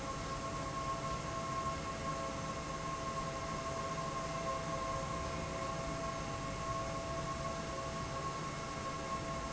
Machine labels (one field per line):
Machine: fan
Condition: abnormal